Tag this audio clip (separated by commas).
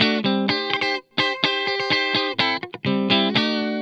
Guitar, Plucked string instrument, Musical instrument, Music, Electric guitar